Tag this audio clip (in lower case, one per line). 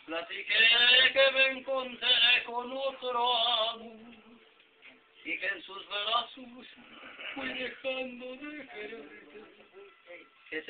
speech
male singing